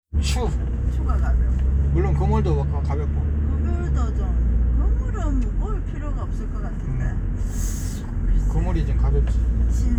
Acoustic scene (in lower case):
car